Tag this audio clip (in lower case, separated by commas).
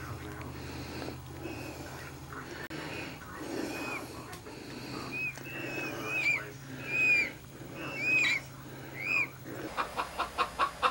chicken, speech